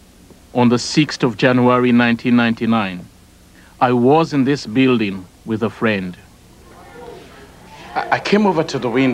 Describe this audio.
A man is giving a speech